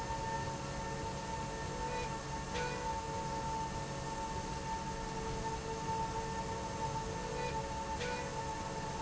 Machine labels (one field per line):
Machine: slide rail